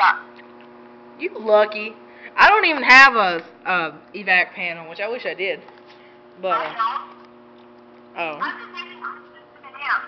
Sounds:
speech

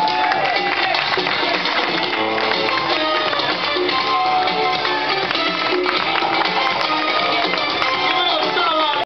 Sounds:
speech, music

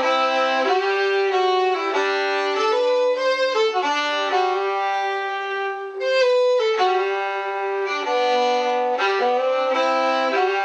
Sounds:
musical instrument, music, violin

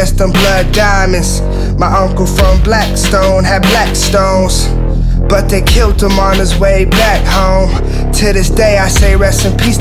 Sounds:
music

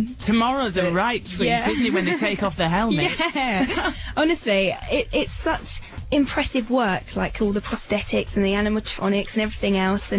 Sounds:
speech

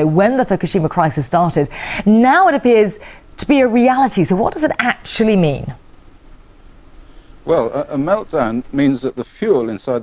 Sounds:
speech

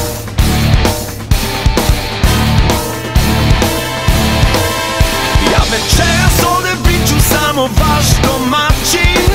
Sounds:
music

